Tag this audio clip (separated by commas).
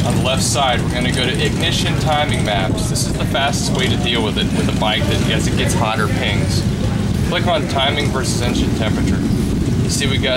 Speech